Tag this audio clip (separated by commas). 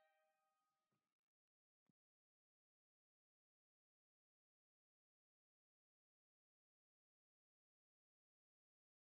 Silence